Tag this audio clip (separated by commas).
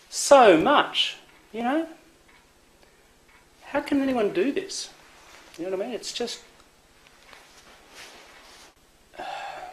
Speech